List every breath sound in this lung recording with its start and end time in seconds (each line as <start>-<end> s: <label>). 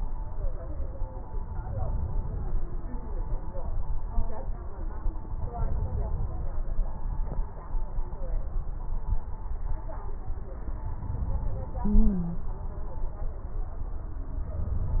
11.86-12.48 s: stridor